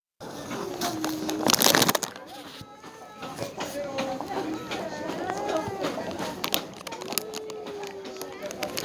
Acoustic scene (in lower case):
crowded indoor space